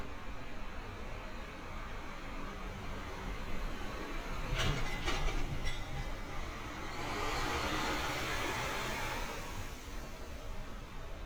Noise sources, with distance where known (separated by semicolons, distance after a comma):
engine of unclear size, near; unidentified impact machinery, near